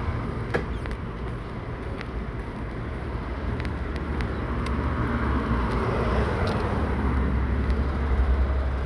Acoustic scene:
residential area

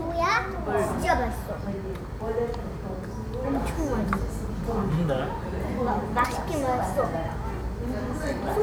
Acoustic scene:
restaurant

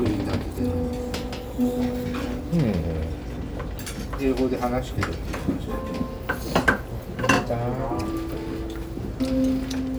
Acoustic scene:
restaurant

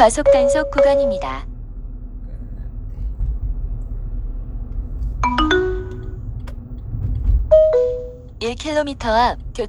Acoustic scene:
car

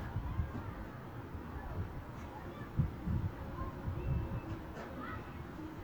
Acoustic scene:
residential area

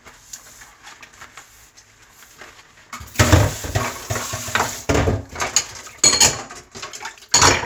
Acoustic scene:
kitchen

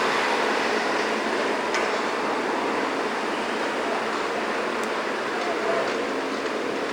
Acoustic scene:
street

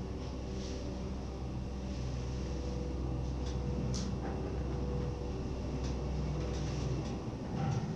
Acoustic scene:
elevator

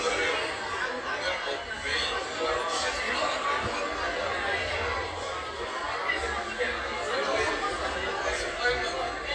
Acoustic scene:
cafe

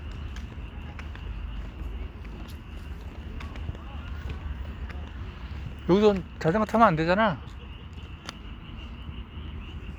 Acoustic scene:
park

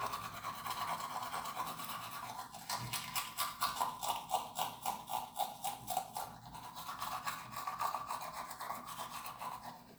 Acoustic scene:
restroom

